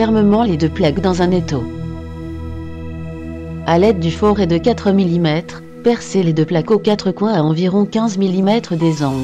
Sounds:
music, speech

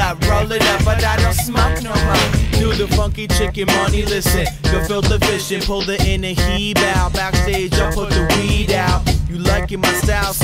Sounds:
music

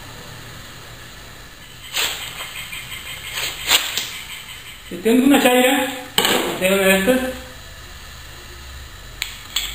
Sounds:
sharpen knife

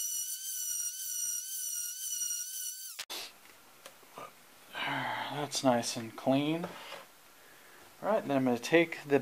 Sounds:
speech

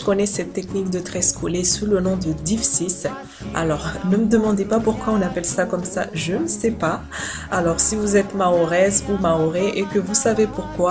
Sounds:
music, speech

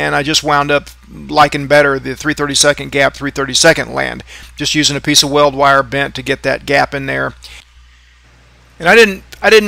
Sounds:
arc welding

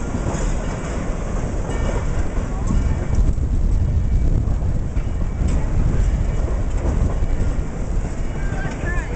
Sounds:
outside, urban or man-made, train, vehicle, speech

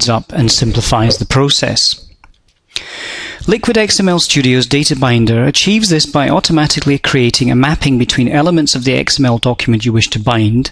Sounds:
speech

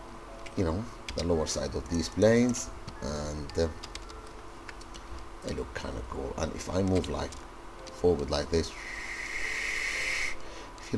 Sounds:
music, speech

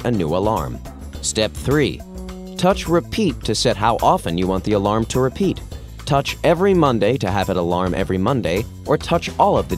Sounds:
speech, music

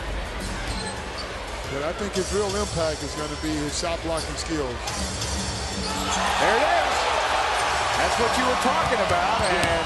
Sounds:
music, speech, basketball bounce

